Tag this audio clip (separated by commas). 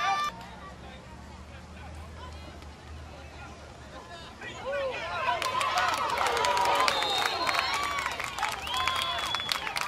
Speech